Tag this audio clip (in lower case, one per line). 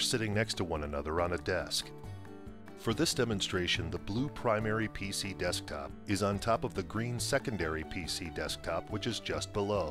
speech
music